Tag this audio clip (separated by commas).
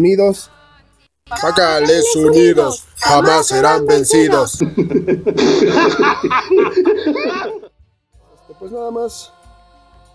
Speech